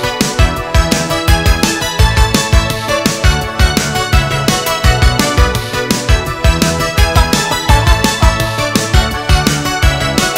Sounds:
music

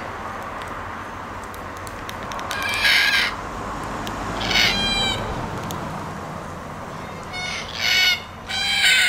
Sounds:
bird

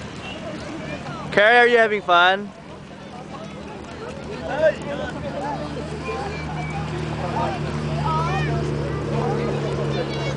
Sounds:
speech
clip-clop

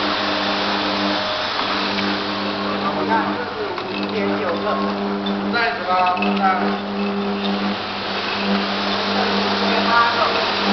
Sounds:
speech

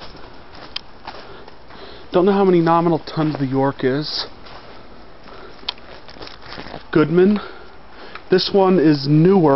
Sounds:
speech

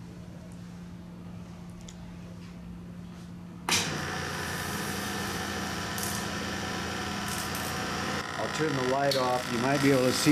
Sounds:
speech

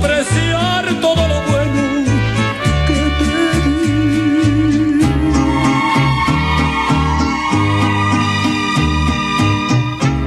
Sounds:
music

